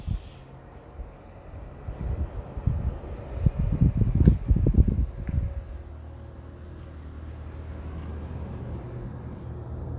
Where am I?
in a residential area